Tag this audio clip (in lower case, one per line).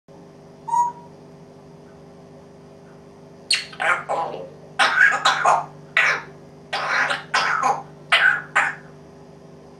cough
pets
bird